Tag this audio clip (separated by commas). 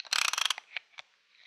Tools, Ratchet, Mechanisms